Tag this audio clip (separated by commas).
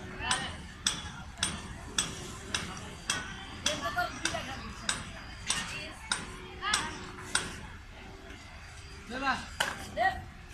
playing badminton